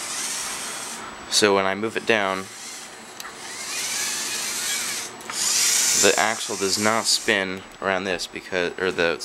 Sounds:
inside a small room, Speech

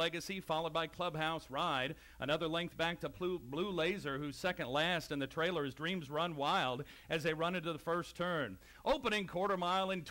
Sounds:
Speech

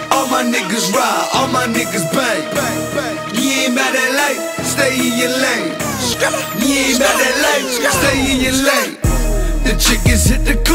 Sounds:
Music

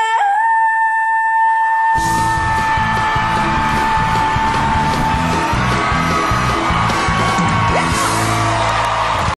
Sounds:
Music

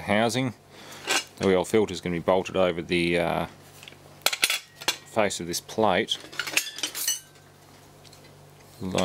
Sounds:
inside a small room, Speech

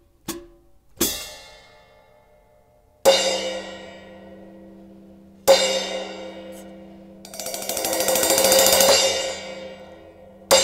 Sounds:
Music

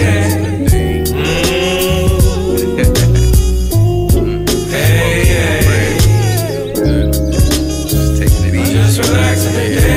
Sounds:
Music, Ska

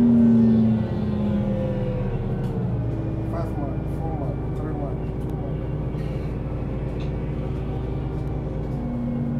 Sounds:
Speech, Bus

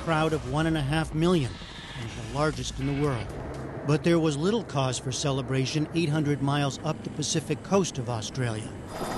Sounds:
Speech

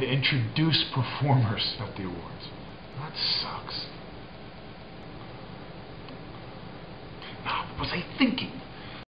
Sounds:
Speech

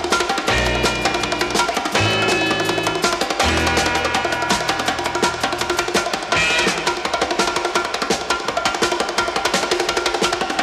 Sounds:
playing bongo

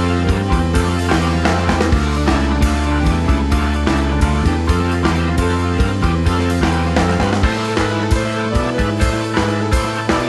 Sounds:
Music

